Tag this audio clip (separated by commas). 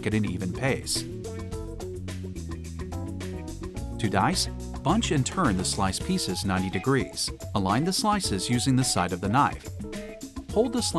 Music, Speech